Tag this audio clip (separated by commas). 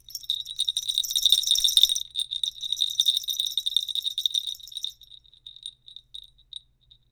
Bell